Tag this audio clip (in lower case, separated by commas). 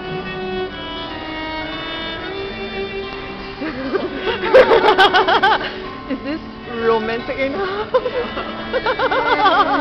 music, speech, violin, guitar, musical instrument